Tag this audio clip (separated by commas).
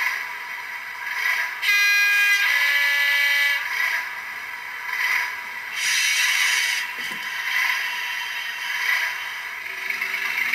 Hiss, Rattle